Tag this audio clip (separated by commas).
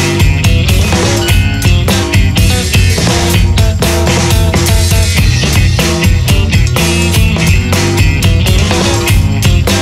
Music